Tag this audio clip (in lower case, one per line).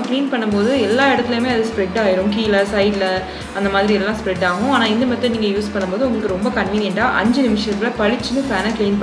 vacuum cleaner cleaning floors